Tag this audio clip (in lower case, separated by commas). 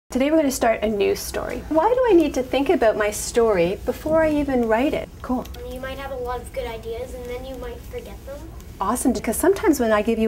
speech, child speech